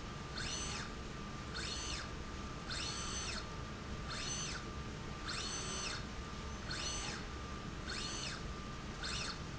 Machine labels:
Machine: slide rail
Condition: normal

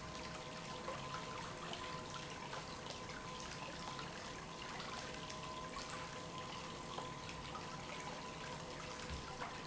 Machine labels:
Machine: pump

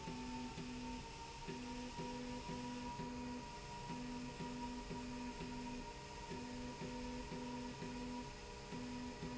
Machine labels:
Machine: slide rail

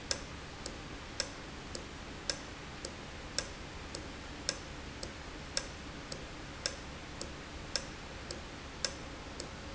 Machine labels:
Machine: valve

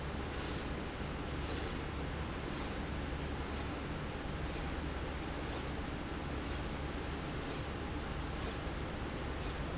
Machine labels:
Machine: slide rail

